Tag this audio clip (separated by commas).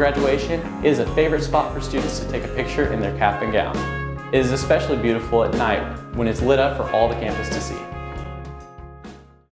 Music, Speech